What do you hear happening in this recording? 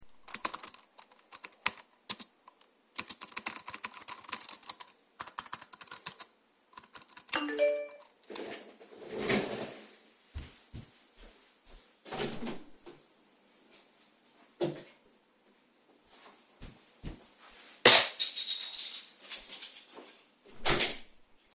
I type on the keyboard and get a notification. I roll the chair back, stand up, and open the door. I walk back, take my keys, go out, and close the door.